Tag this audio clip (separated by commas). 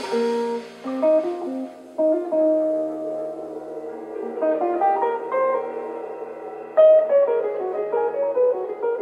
Musical instrument, Music, Drum, Drum kit, Plucked string instrument, Guitar, Bowed string instrument, Double bass